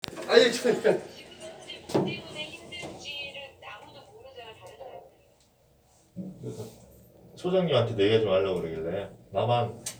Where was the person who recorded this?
in an elevator